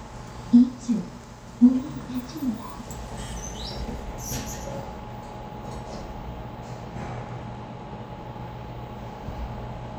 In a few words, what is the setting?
elevator